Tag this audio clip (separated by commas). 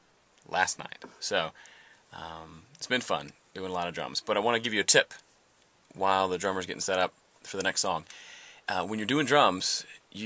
Speech